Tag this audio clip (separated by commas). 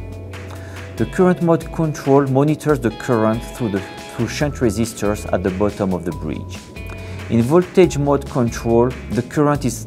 Speech, Music